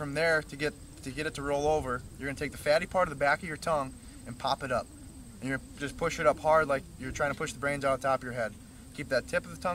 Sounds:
Speech

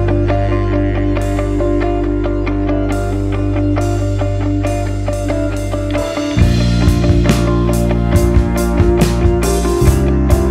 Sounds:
Music

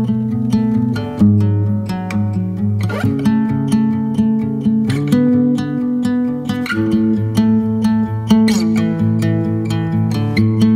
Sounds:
Music

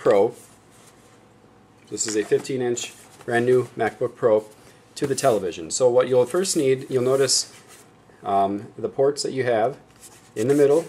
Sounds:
Speech

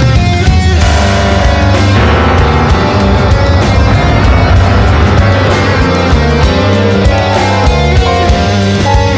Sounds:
Music

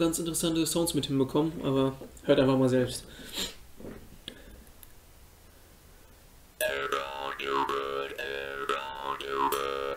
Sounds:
Speech

